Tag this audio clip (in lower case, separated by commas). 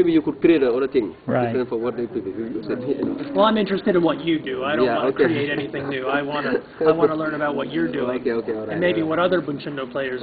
speech, laughter